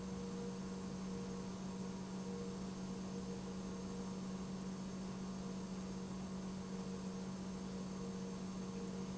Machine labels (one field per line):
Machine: pump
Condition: normal